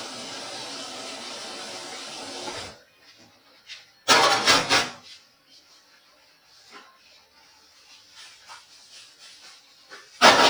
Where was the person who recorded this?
in a kitchen